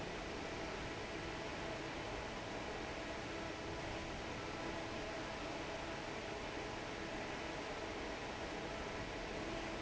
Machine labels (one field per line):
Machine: fan